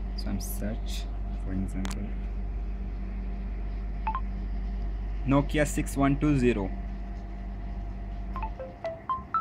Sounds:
Narration, Speech, Male speech

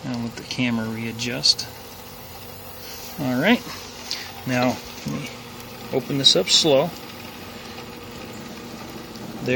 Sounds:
Boiling, Speech, outside, urban or man-made

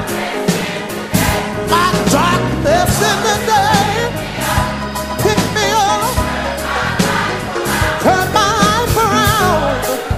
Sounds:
Music

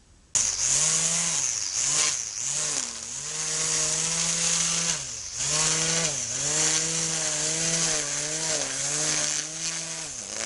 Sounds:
chainsawing trees, Chainsaw

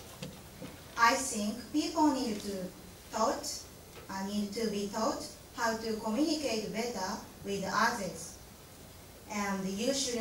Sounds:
Speech, Female speech, kid speaking

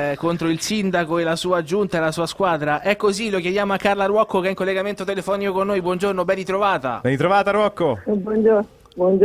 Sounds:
Speech

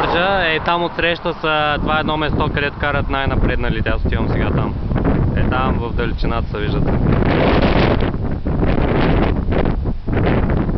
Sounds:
Speech

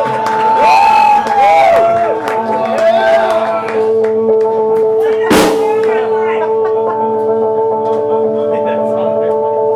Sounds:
Music, Speech

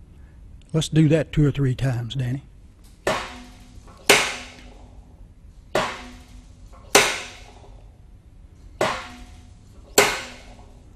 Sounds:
Speech

